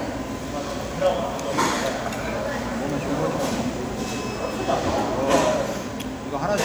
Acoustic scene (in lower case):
restaurant